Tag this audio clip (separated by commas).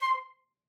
Music, Musical instrument, woodwind instrument